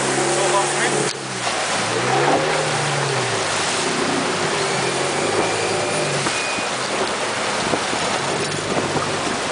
A jet boat is revving its engine